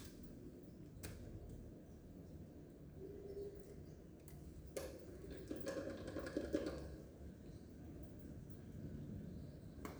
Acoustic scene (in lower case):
elevator